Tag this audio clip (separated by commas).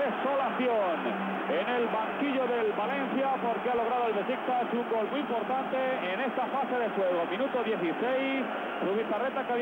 Speech